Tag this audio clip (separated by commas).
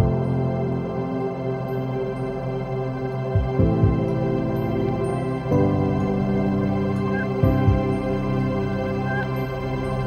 New-age music, Ambient music